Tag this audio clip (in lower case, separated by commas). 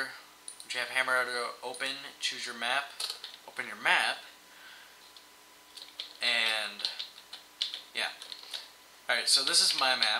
speech